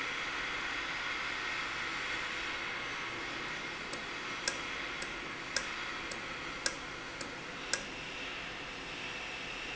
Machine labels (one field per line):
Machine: valve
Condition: normal